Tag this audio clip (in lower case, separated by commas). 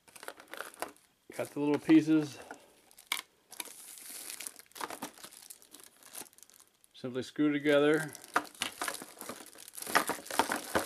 speech